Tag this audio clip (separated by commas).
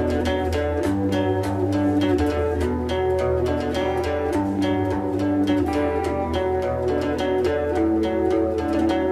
Music, Electric guitar, Plucked string instrument, Guitar, Musical instrument